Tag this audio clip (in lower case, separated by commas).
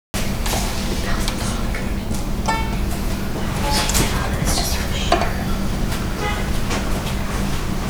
human voice, whispering